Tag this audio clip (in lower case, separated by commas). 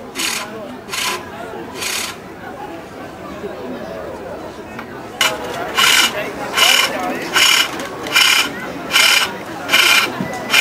speech